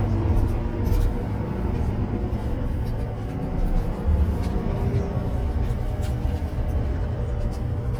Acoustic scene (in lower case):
car